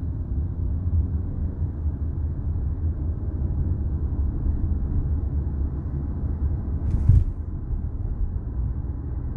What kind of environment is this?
car